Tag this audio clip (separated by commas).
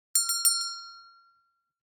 Bell